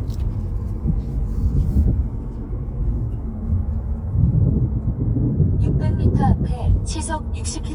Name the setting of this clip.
car